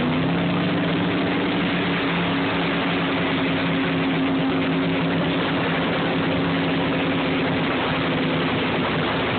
The boat is driving through the water